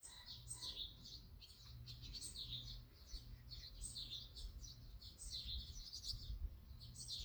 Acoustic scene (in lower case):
park